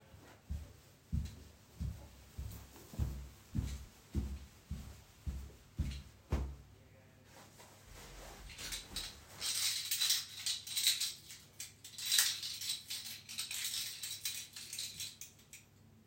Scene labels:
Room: hallway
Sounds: footsteps, keys

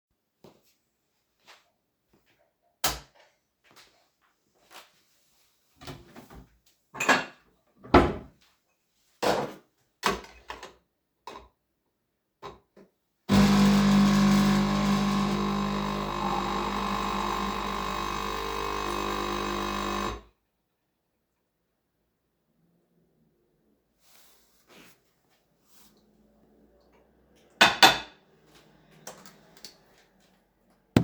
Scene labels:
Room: kitchen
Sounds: light switch, cutlery and dishes, coffee machine

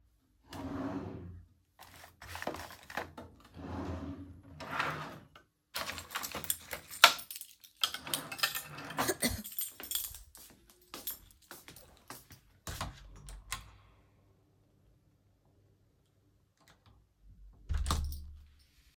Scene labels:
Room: living room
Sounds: wardrobe or drawer (more than once), keys, footsteps, door (more than once)

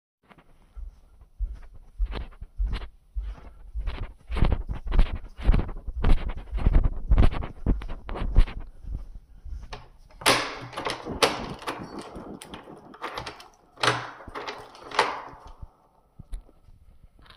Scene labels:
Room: hallway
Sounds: footsteps, door

